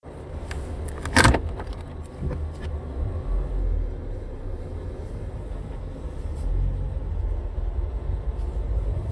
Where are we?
in a car